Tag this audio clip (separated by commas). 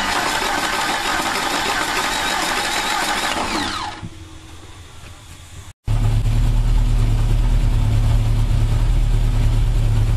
Medium engine (mid frequency), Engine